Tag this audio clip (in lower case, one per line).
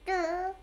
kid speaking
speech
human voice